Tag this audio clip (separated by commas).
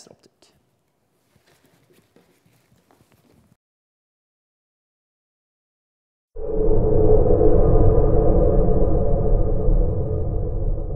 Music, Speech